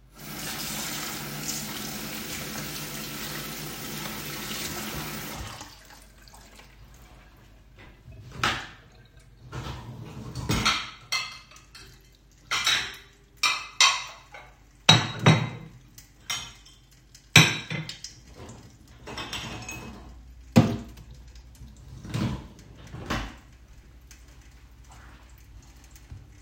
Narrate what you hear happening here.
I washed my hands in the kitchen sink, opened the dishwasher, took the dishes out and put on the metal counter.